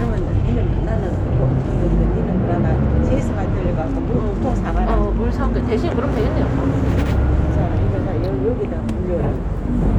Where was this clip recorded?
on a bus